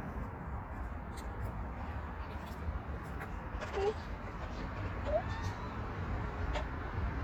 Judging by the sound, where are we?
on a street